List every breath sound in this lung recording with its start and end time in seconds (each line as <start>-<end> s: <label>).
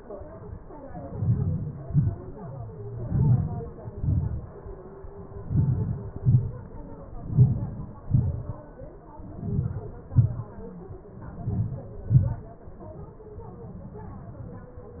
1.17-1.80 s: inhalation
1.90-2.23 s: exhalation
3.05-3.67 s: inhalation
4.00-4.46 s: exhalation
5.44-5.99 s: inhalation
6.24-6.59 s: exhalation
7.33-7.83 s: inhalation
8.13-8.48 s: exhalation
9.45-9.98 s: inhalation
10.14-10.56 s: exhalation
11.36-11.91 s: inhalation
12.11-12.46 s: exhalation